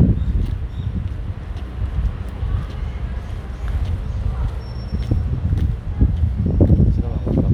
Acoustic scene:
residential area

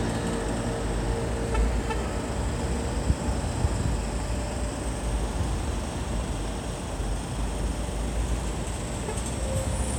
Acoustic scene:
street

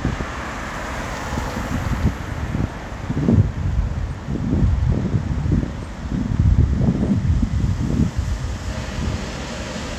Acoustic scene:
street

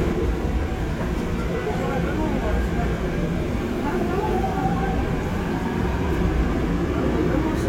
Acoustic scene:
subway train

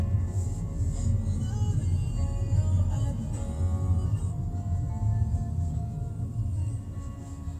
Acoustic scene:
car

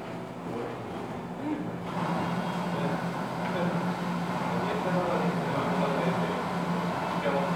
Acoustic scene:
cafe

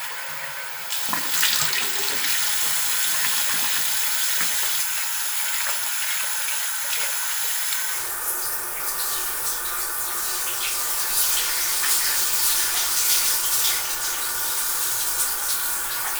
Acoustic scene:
restroom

